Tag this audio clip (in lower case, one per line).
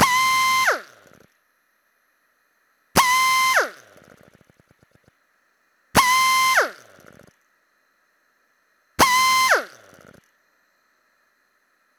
power tool
tools
drill